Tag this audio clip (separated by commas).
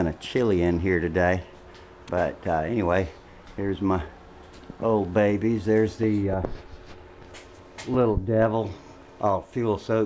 Speech